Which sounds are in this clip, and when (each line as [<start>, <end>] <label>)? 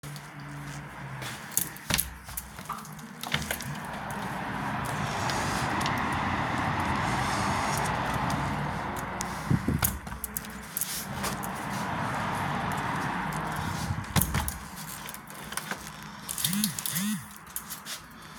[3.18, 3.77] window
[14.07, 15.79] window
[16.24, 17.29] phone ringing